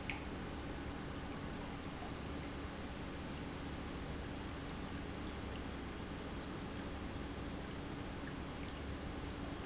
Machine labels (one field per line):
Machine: pump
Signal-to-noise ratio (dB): 0 dB